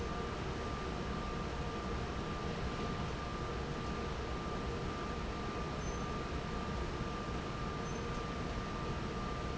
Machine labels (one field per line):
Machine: fan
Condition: normal